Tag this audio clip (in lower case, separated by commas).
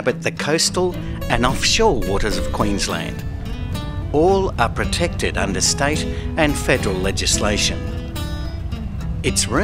music, speech